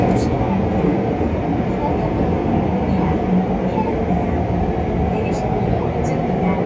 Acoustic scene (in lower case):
subway train